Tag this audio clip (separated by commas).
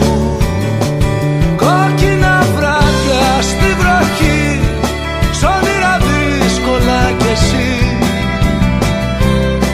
Music